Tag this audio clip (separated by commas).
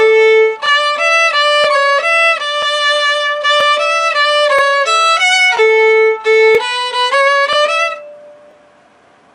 Musical instrument, Music, Violin